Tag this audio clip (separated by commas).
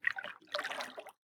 Liquid, Splash